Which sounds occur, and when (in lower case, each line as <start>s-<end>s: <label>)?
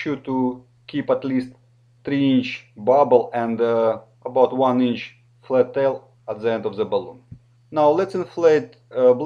0.0s-9.2s: mechanisms
0.0s-0.6s: male speech
0.8s-1.6s: male speech
2.0s-2.6s: male speech
2.7s-3.9s: male speech
4.2s-5.1s: male speech
5.4s-6.0s: male speech
6.2s-7.3s: male speech
7.7s-8.7s: male speech
8.9s-9.2s: male speech